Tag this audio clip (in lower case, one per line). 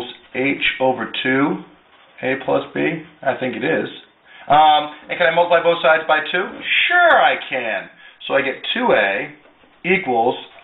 inside a small room
speech